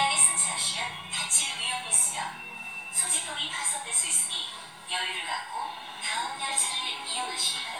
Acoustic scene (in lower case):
subway train